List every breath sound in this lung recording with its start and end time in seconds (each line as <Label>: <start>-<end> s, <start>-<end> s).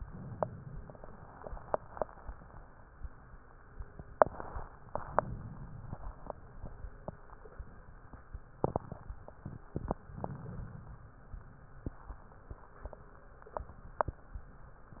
Inhalation: 0.00-1.14 s, 4.91-6.05 s, 10.04-11.18 s